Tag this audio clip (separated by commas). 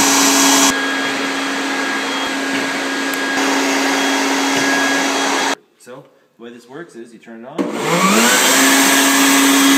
Speech